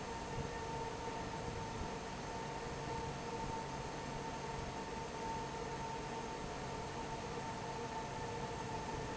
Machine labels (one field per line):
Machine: fan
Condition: normal